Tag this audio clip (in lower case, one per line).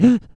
breathing
respiratory sounds